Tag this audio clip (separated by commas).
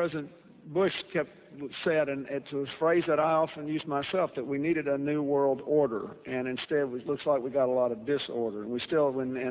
Male speech, monologue, Speech